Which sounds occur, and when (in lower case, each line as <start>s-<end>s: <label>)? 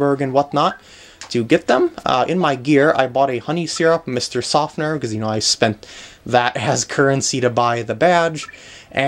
0.0s-0.7s: male speech
0.0s-9.0s: mechanisms
0.0s-9.0s: video game sound
0.6s-0.8s: bleep
0.8s-1.1s: breathing
1.1s-1.2s: tick
1.3s-5.7s: male speech
3.7s-3.8s: bleep
5.8s-6.2s: breathing
6.2s-8.4s: male speech
8.4s-8.6s: sound effect
8.5s-8.9s: breathing